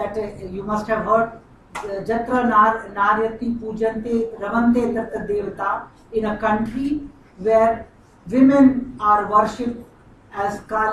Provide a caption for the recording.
A woman speaking in a foreign language